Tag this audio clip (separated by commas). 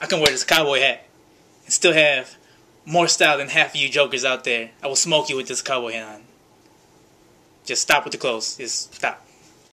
Speech